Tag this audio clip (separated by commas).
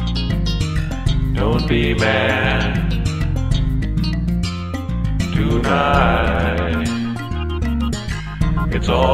Rhythm and blues, Music